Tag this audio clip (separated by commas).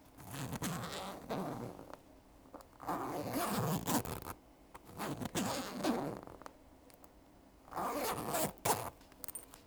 home sounds, Zipper (clothing)